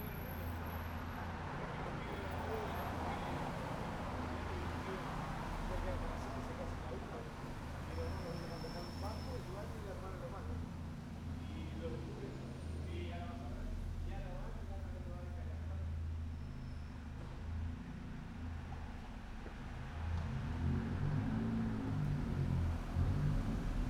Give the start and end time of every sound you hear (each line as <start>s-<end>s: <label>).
0.0s-16.5s: people talking
0.0s-20.1s: car engine idling
0.0s-23.9s: car
1.1s-8.5s: car wheels rolling
19.4s-23.9s: car wheels rolling
20.1s-23.9s: car engine accelerating